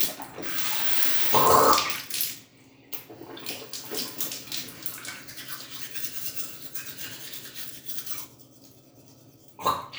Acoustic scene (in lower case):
restroom